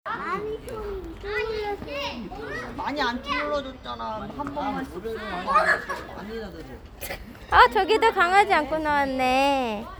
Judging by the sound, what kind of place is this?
park